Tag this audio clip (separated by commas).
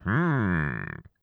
Human voice